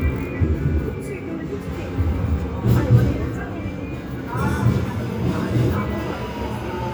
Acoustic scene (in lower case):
subway station